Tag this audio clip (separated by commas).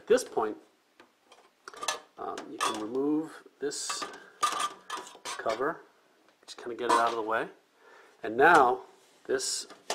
Speech